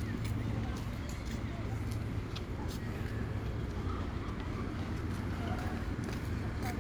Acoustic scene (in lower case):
park